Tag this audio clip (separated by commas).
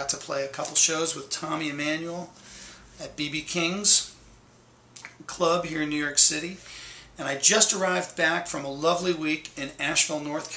Speech